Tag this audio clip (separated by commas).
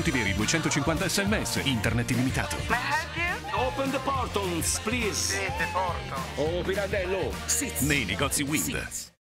Speech, Music